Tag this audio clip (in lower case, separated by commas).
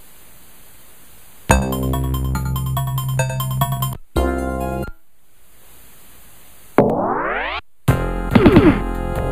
music, inside a small room